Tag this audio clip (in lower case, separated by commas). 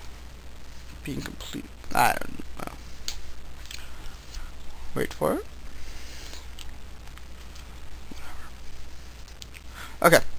speech